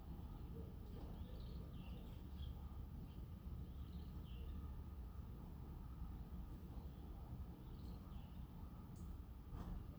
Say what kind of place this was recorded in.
residential area